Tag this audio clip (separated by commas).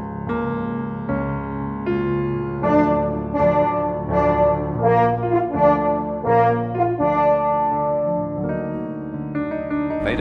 playing french horn